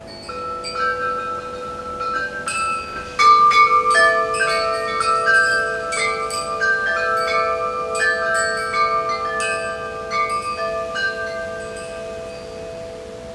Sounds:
wind chime
bell
chime

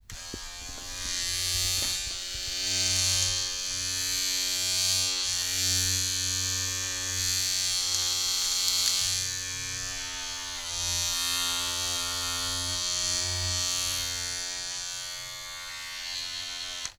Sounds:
domestic sounds

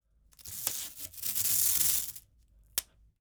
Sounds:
home sounds
duct tape

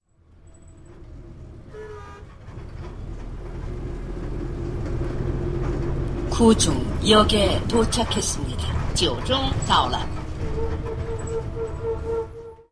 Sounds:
vehicle

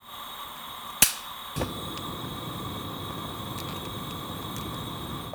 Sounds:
fire

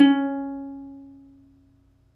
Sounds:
plucked string instrument
musical instrument
music

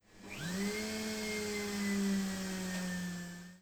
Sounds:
home sounds

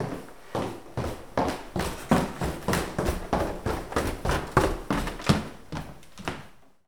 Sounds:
footsteps

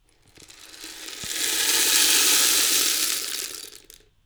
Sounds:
percussion
rattle (instrument)
music
musical instrument

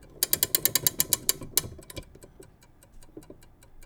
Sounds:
mechanisms
clock

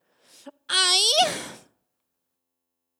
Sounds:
human voice

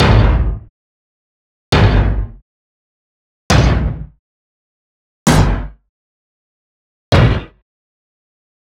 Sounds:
thump

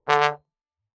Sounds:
musical instrument
brass instrument
music

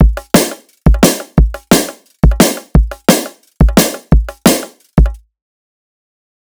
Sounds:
drum kit
music
percussion
musical instrument

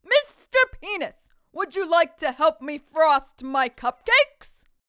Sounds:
woman speaking
speech
shout
human voice
yell

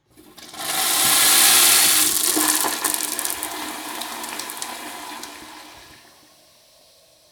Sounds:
water
home sounds
toilet flush

